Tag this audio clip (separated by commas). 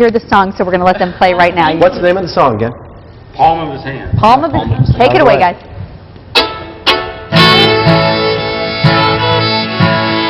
Violin, Bowed string instrument